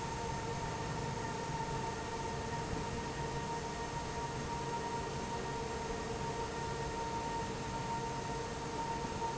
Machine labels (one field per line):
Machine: fan